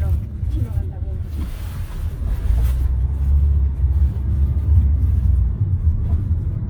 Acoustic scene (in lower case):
car